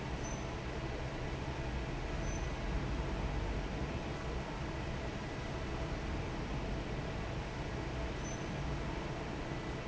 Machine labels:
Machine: fan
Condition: normal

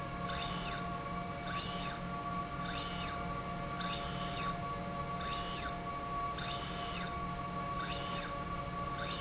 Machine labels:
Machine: slide rail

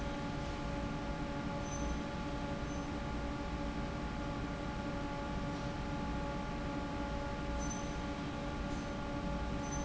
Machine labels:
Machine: fan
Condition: normal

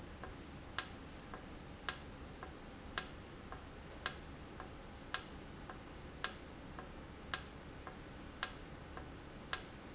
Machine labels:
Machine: valve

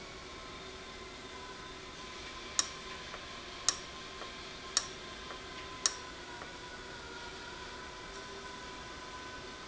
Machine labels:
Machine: valve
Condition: abnormal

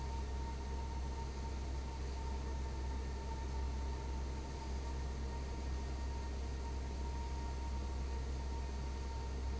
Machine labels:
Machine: fan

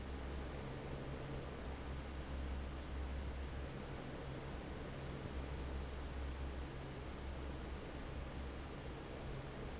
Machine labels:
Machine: fan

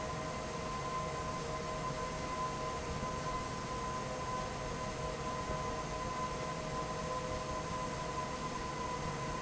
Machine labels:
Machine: fan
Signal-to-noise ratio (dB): -6 dB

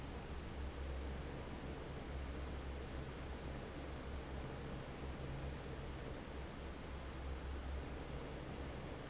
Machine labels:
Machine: fan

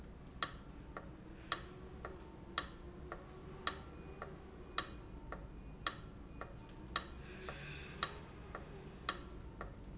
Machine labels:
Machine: valve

